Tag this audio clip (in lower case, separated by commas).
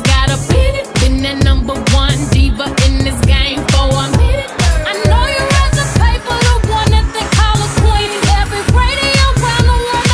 music